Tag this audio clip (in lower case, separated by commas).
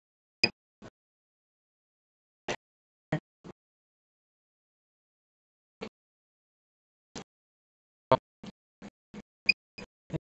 speech